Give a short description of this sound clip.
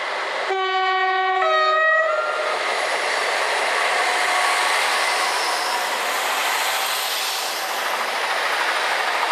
A train moving on tracks while blowing its horn